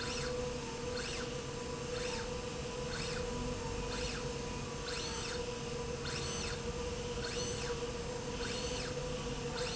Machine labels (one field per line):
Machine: slide rail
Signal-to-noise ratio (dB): -6 dB